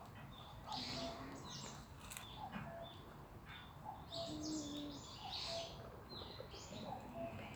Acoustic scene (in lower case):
park